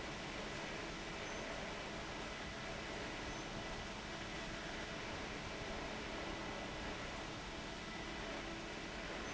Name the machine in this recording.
fan